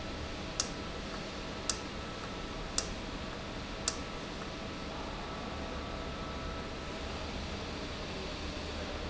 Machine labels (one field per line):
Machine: valve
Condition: normal